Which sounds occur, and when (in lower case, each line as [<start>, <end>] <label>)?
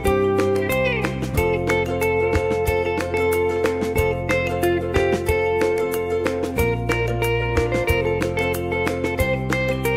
[0.00, 9.95] music